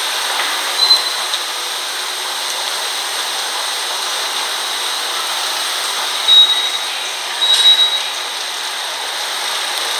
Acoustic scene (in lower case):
subway station